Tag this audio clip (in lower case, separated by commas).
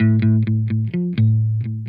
guitar, musical instrument, music, plucked string instrument, electric guitar